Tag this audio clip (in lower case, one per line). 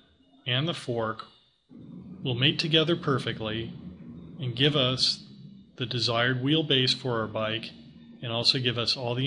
speech